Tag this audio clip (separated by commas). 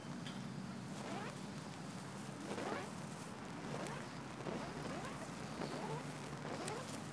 Fire